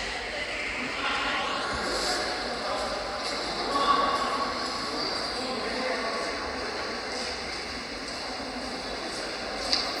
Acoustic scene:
subway station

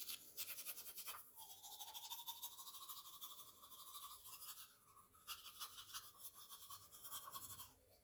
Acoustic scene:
restroom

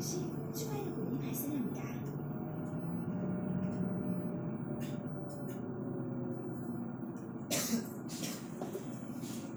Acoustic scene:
bus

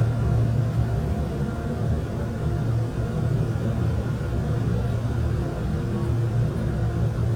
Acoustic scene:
subway train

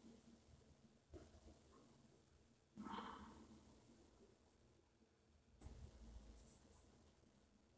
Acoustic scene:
elevator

